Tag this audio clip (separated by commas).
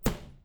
Vehicle, Bus, Motor vehicle (road)